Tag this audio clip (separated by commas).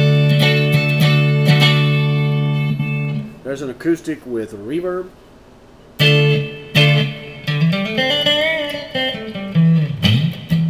Speech, Tapping (guitar technique), Electric guitar, Music